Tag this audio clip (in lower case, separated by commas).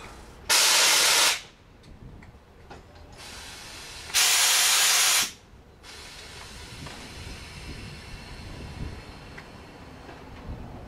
rail transport, train wagon, train, vehicle